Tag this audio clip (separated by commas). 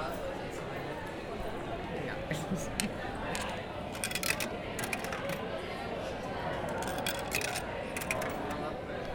Domestic sounds, Coin (dropping)